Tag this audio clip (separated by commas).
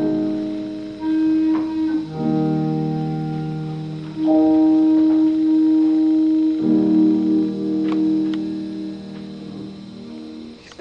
Classical music, Music, Piano, Musical instrument, woodwind instrument, Clarinet